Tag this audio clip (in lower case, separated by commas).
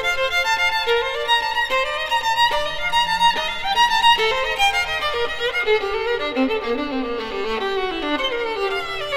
fiddle, music, musical instrument